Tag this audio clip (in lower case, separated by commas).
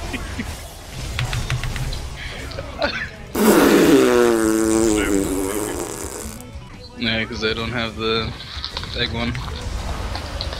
speech, music